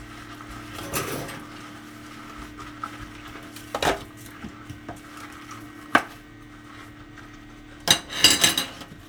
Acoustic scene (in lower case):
kitchen